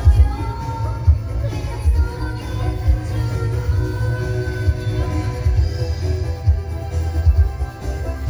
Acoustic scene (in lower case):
car